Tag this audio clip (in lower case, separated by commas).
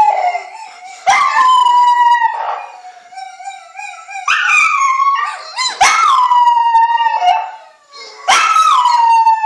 animal, pets, canids, dog, howl